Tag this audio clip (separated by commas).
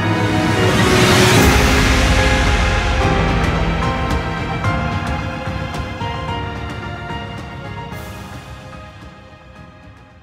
Theme music, Soundtrack music, Music